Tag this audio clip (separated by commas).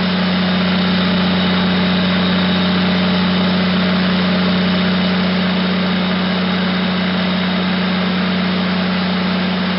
Engine